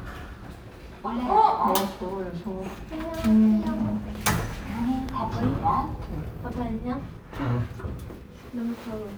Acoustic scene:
elevator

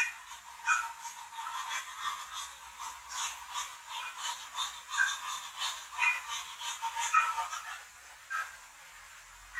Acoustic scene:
restroom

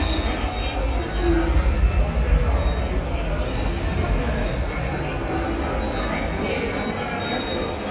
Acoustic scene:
subway station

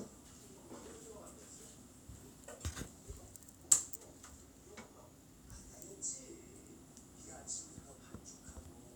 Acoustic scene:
kitchen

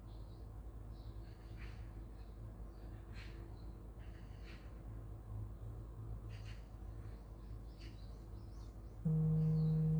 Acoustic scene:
park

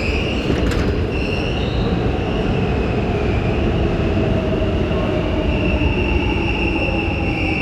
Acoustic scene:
subway station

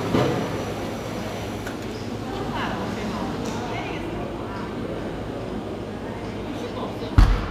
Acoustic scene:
cafe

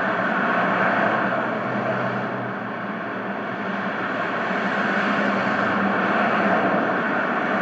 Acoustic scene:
street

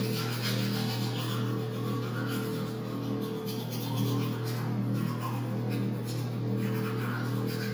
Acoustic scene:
restroom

